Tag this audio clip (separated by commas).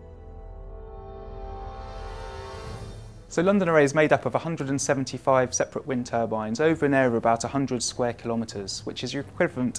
Speech